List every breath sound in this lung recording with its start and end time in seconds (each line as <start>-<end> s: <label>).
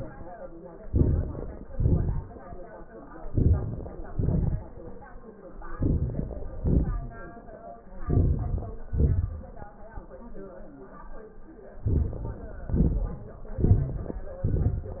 0.78-1.71 s: inhalation
0.78-1.71 s: crackles
1.72-2.63 s: exhalation
1.72-2.63 s: crackles
3.20-4.12 s: inhalation
3.20-4.12 s: crackles
4.12-5.16 s: exhalation
4.12-5.16 s: crackles
5.57-6.47 s: inhalation
5.57-6.47 s: crackles
6.48-7.44 s: exhalation
6.48-7.44 s: crackles
7.85-8.90 s: crackles
7.87-8.91 s: inhalation
8.89-9.90 s: exhalation
8.92-9.92 s: crackles
11.76-12.67 s: inhalation
11.76-12.67 s: crackles
12.68-13.59 s: exhalation
12.68-13.59 s: crackles
13.61-14.42 s: inhalation
13.61-14.43 s: crackles
14.44-15.00 s: exhalation
14.44-15.00 s: crackles